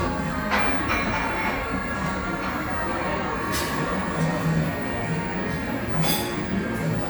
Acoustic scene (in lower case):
cafe